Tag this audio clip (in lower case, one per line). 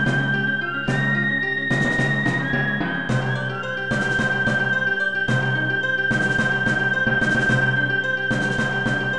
music